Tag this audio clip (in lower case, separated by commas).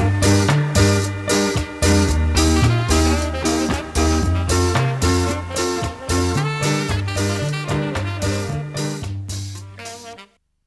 music, ska, swing music